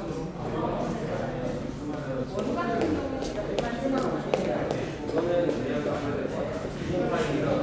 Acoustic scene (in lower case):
crowded indoor space